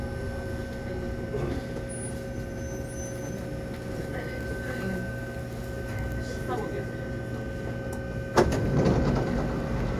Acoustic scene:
subway train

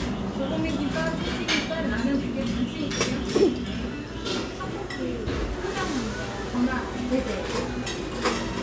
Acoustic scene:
restaurant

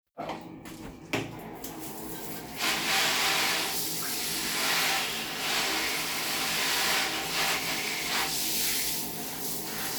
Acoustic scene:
restroom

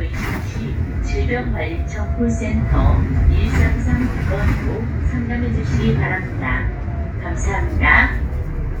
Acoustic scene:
bus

